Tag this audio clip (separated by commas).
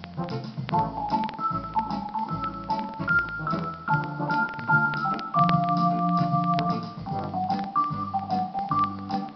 Music